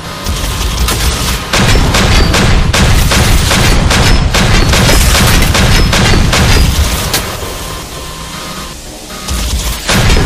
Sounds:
Boom

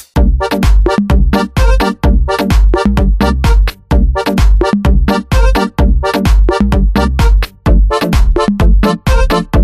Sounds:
Music

